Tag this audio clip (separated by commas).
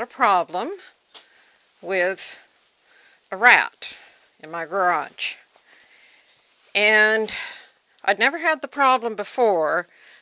Speech